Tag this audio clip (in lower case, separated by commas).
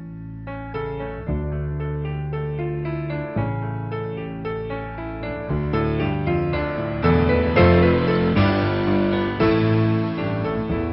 music